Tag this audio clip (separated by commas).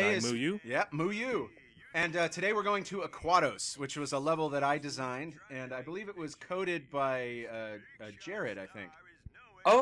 Speech